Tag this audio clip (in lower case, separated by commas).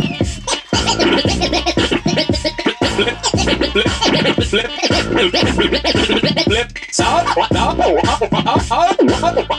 inside a small room, hip hop music, music